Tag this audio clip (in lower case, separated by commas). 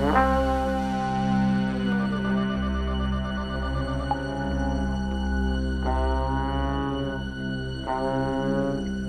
music